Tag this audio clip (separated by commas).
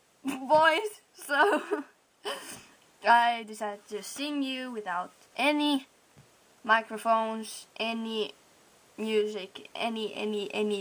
Speech